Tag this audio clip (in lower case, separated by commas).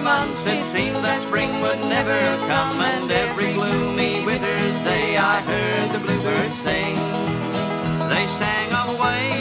music, country, bluegrass